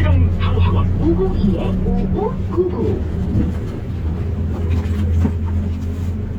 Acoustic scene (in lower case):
bus